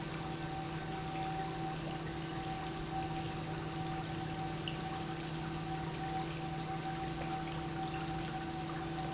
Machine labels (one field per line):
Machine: pump